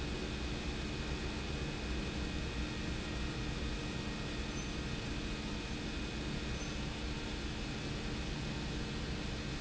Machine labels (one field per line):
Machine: pump